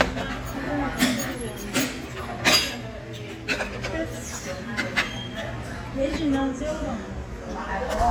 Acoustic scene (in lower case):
restaurant